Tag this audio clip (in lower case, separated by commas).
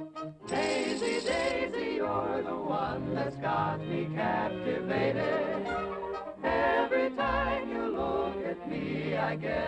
music